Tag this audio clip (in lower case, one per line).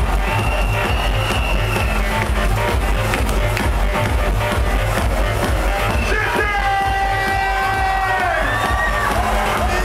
music
techno